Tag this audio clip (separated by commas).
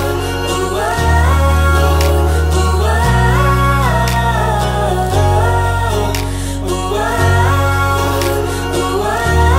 Rhythm and blues